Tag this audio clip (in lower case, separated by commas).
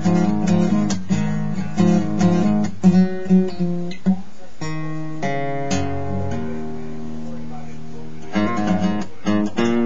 guitar, plucked string instrument, strum, musical instrument, music, acoustic guitar